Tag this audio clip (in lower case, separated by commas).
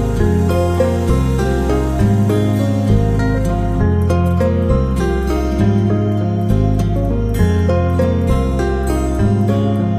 music, new-age music